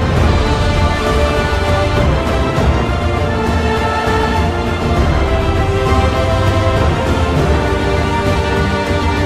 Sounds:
music

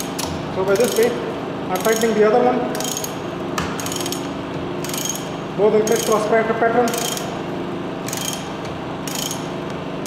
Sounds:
speech

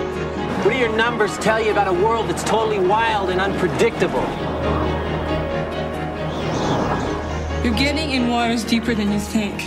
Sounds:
speech, music

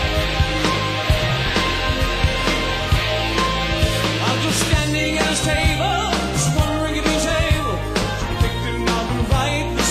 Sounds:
music

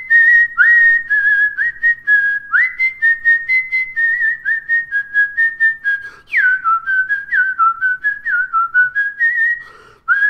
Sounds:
people whistling

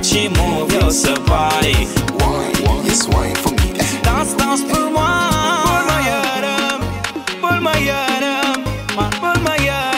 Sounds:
afrobeat, music

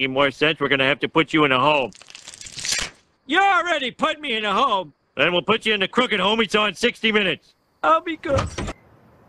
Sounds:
speech, inside a small room

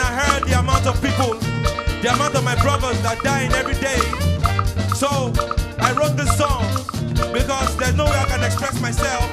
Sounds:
music, speech

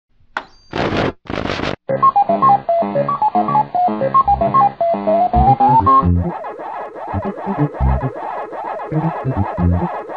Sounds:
music

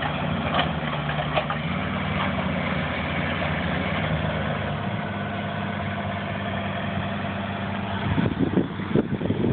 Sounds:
vehicle, truck

